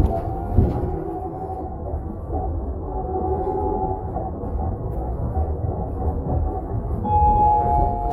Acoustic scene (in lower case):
bus